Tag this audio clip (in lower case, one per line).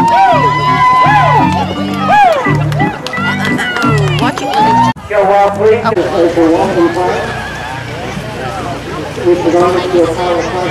speech
music